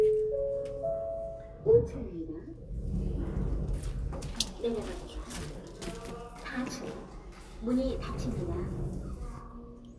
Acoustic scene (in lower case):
elevator